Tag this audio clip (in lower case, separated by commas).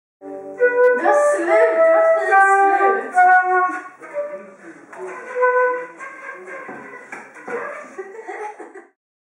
flute, musical instrument, speech, music